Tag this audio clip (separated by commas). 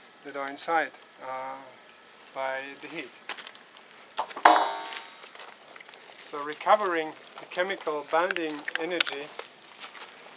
Fire